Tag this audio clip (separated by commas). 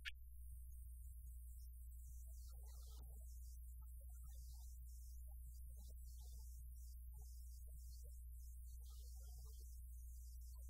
Speech